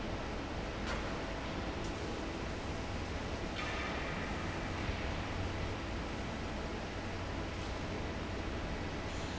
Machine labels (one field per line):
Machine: fan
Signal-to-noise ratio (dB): -6 dB